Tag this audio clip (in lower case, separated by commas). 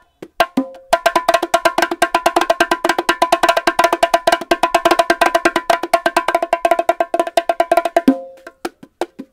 playing bongo